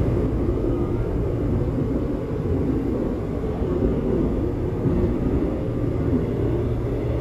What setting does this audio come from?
subway train